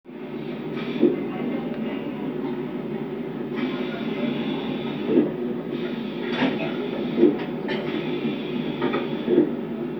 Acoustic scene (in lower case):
subway train